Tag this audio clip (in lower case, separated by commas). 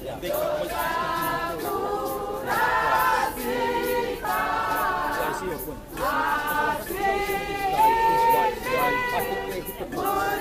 speech, female singing